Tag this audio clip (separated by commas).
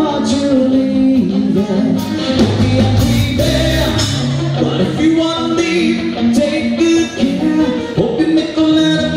Music